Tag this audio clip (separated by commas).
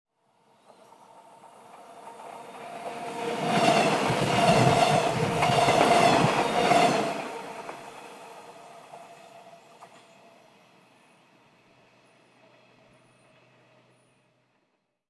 Train, Rail transport, Vehicle